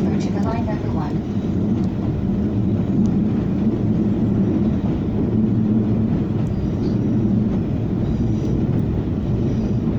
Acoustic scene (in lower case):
subway train